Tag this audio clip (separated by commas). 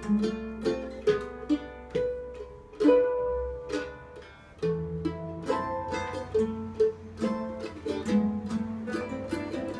Music, Plucked string instrument, Musical instrument, Guitar